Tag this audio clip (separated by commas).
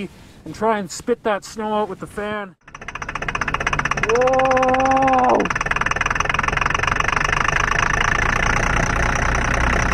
Speech